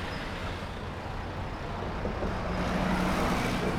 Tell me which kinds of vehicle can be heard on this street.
car, bus